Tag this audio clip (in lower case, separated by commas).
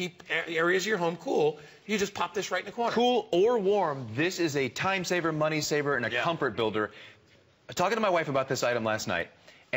speech